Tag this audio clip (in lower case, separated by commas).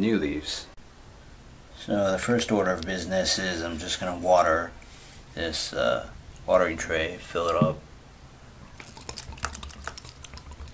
inside a small room, speech